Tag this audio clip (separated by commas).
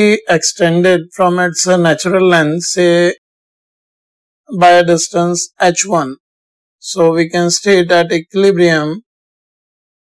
Speech